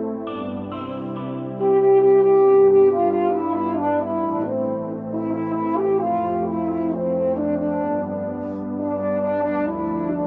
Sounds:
playing french horn

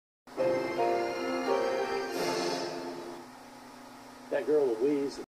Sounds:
speech, music, television

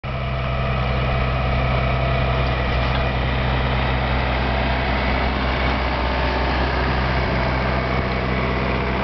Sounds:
outside, rural or natural, vehicle

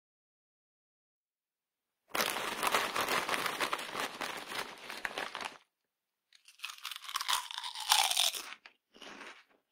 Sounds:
people eating crisps

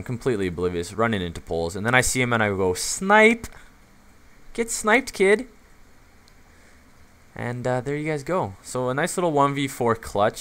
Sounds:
speech

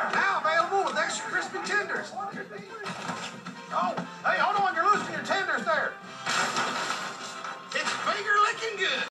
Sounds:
speech, music

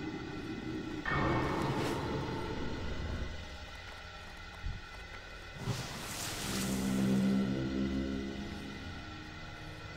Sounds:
music

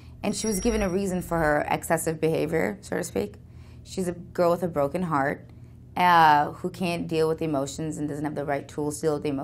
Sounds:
inside a small room, speech

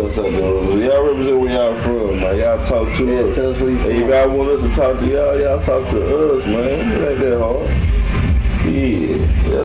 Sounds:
speech, music

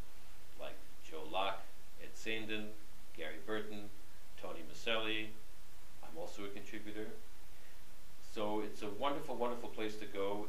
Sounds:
speech

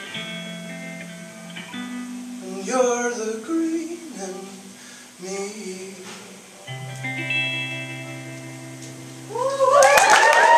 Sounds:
plucked string instrument, singing, guitar, music, inside a large room or hall

